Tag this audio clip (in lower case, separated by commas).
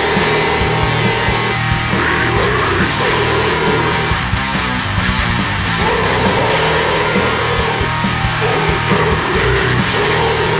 music